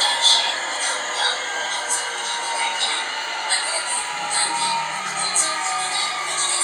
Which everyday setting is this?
subway train